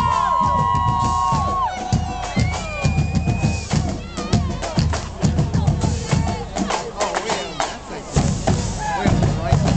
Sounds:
people marching

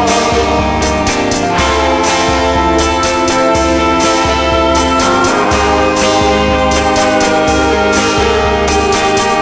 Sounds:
music

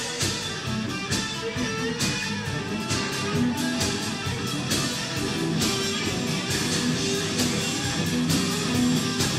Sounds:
music

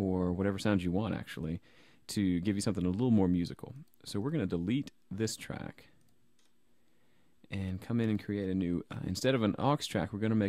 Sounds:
speech

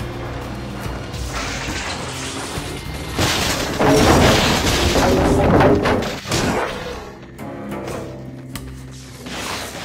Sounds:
music

